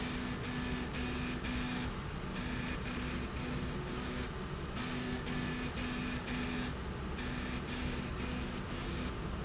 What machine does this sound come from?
slide rail